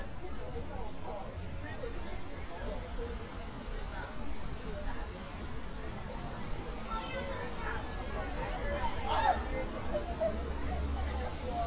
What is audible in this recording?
person or small group talking